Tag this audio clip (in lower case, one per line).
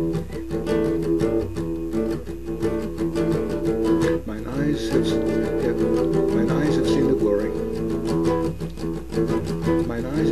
guitar
strum
speech
acoustic guitar
music
plucked string instrument
musical instrument